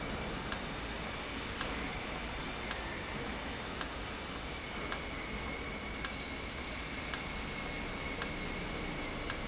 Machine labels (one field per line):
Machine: valve